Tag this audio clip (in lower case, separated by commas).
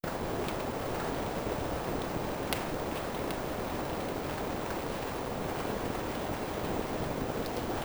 rain, water